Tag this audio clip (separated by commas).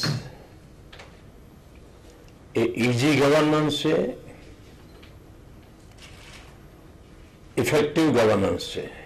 man speaking, Speech, Narration